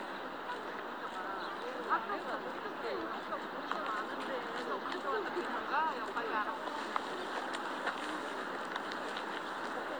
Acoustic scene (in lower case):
park